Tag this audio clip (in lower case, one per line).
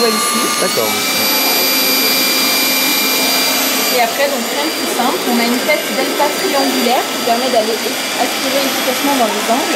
vacuum cleaner